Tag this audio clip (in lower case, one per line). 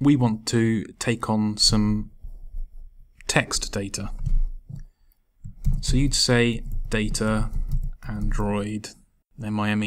speech